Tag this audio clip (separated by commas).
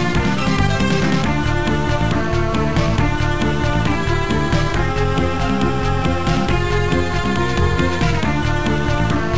Music